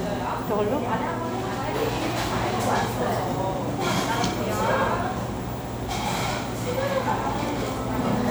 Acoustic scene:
cafe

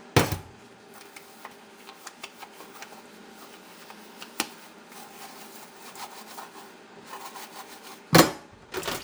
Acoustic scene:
kitchen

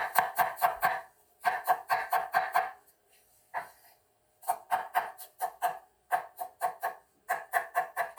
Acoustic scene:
kitchen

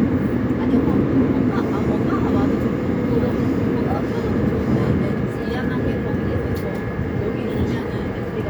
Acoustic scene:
subway train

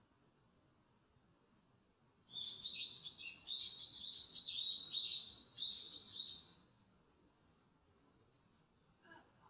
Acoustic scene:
park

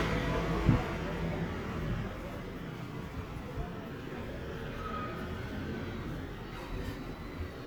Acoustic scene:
residential area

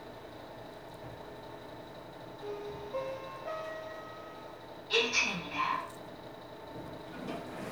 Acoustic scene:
elevator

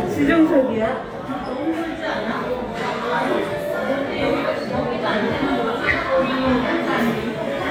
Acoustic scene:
restaurant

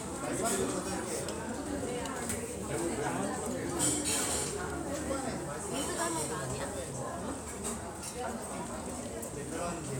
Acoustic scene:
restaurant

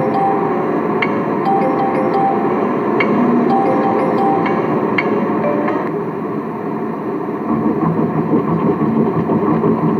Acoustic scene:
car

